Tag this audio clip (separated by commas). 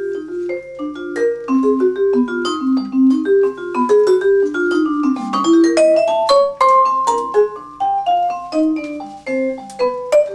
Percussion